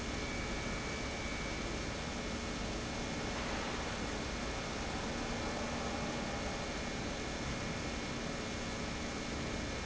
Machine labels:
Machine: pump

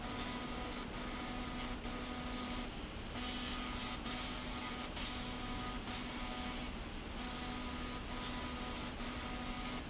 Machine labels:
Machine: slide rail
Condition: abnormal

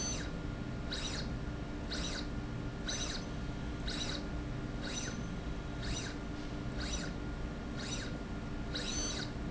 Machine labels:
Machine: slide rail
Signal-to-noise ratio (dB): -6 dB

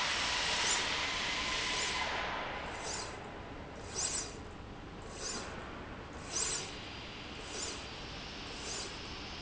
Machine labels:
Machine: slide rail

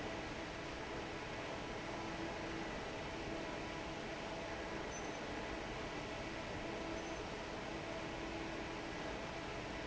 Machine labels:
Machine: fan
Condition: normal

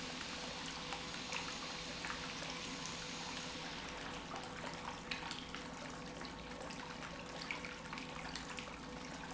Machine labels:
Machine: pump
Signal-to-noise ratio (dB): 6 dB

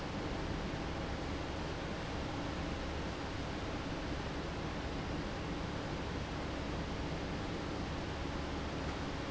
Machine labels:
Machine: fan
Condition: abnormal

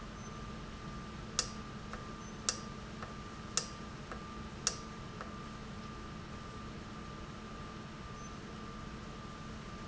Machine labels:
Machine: valve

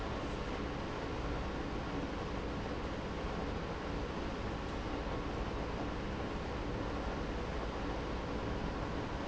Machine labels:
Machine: pump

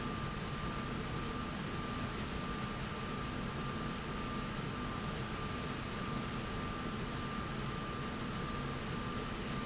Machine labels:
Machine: slide rail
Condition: normal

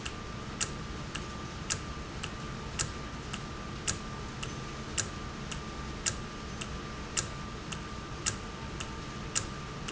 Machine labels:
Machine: valve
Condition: normal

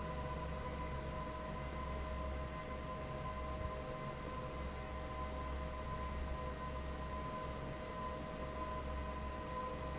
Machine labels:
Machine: fan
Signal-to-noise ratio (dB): 0 dB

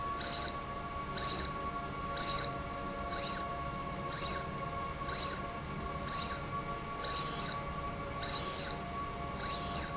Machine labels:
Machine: slide rail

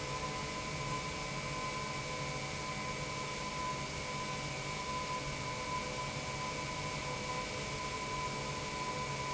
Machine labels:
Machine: pump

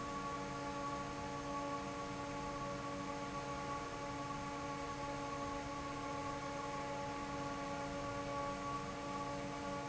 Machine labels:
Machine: fan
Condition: normal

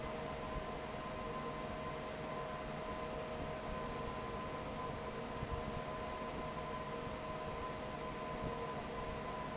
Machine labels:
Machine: fan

